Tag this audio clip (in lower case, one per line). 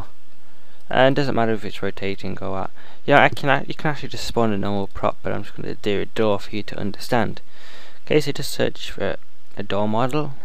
speech